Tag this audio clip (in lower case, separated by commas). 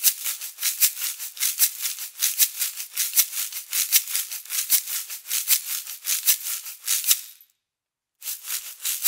playing guiro